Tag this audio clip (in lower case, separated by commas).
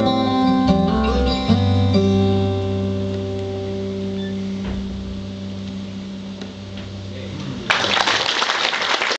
acoustic guitar, guitar, music